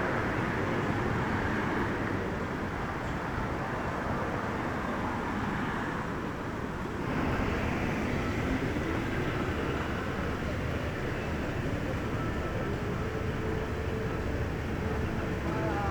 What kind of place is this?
street